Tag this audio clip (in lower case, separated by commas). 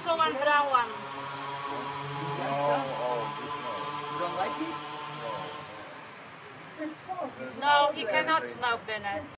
speech